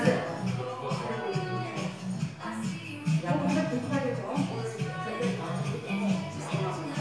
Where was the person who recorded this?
in a crowded indoor space